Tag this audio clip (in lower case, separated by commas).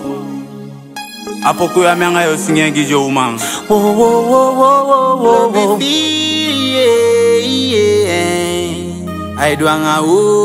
music